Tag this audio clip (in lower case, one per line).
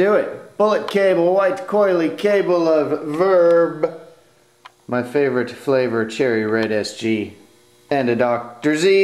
speech